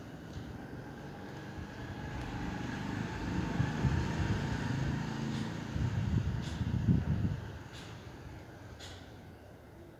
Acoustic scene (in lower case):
residential area